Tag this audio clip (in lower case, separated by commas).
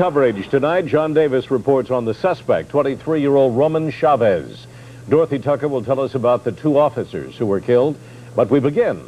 speech